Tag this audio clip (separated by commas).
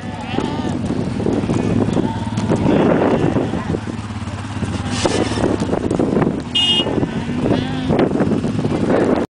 Bleat, Sheep